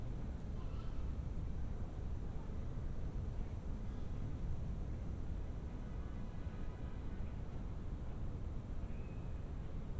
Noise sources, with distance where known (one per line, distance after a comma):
car horn, far